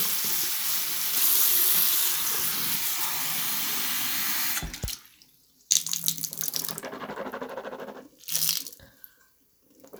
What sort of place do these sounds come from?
restroom